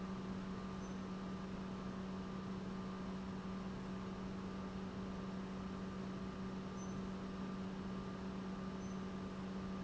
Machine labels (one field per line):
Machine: pump